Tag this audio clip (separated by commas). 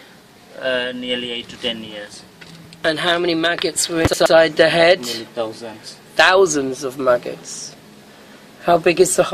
Speech